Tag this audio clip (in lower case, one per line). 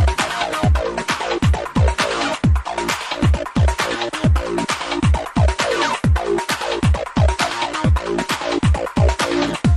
trance music